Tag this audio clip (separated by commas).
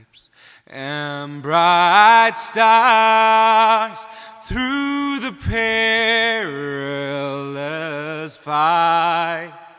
Male singing